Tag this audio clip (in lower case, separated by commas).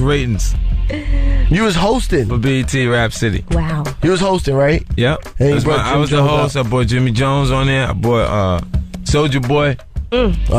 music, speech